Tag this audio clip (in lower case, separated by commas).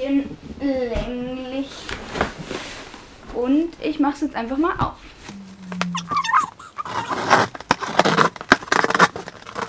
speech